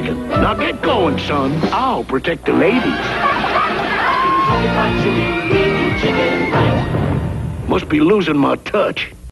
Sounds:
music, speech

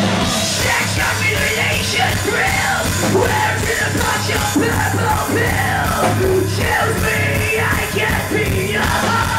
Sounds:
music, soundtrack music

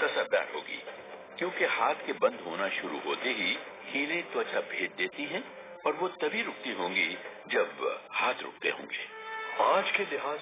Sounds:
speech, inside a large room or hall, music

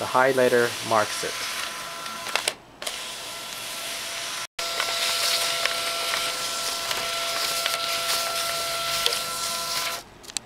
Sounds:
speech, printer

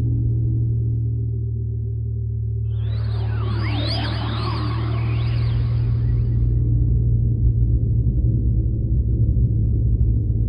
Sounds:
music, soundtrack music

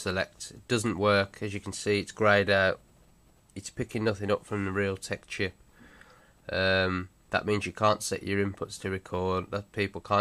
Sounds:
speech

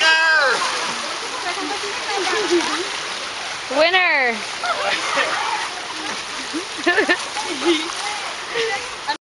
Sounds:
speech, stream

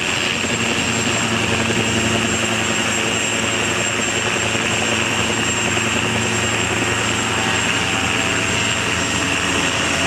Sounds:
aircraft, helicopter, vehicle

